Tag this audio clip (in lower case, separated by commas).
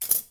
domestic sounds, scissors